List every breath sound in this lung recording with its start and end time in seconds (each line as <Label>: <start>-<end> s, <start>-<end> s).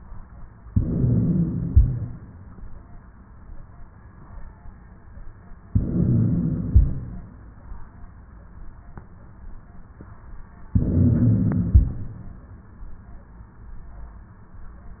Inhalation: 0.68-1.67 s, 5.68-6.75 s, 10.71-11.74 s
Exhalation: 1.67-2.20 s, 6.75-7.28 s, 11.74-12.31 s
Crackles: 0.68-1.67 s, 1.67-2.20 s, 5.66-6.73 s, 6.75-7.28 s, 10.71-11.74 s, 11.76-12.33 s